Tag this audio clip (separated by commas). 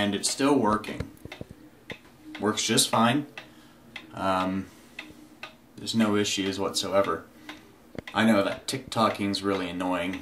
Speech